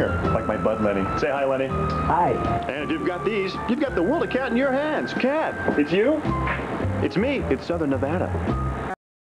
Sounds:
speech, music

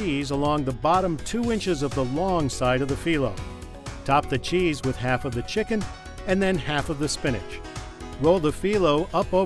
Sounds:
music, speech

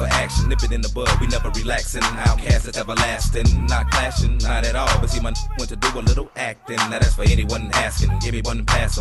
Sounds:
music, speech

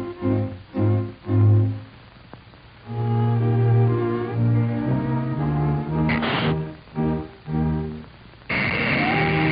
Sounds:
music

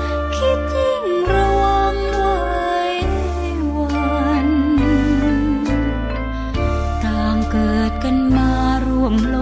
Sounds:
tender music, music

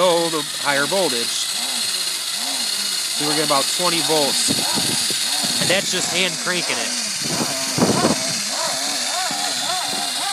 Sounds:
speech, vehicle, bicycle

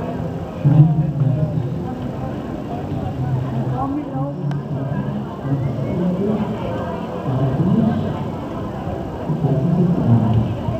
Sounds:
outside, urban or man-made, crowd, speech

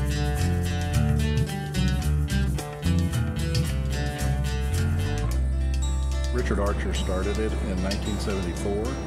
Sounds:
music, speech

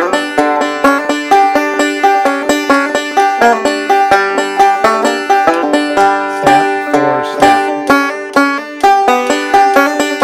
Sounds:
music, banjo

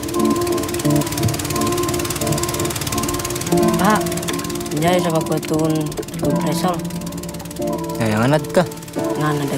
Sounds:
music, speech

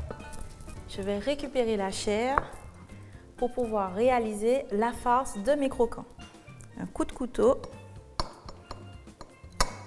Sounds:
speech, music

